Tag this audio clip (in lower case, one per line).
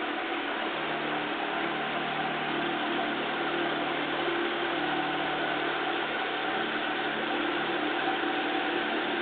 car
vehicle